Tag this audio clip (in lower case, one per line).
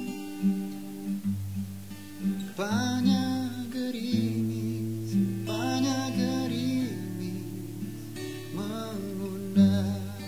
music